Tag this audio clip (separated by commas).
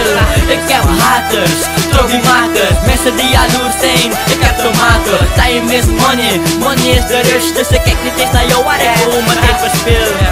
Dance music, Music